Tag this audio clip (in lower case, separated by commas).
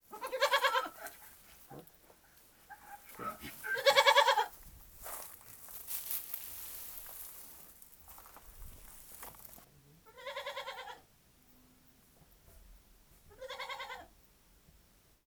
animal, livestock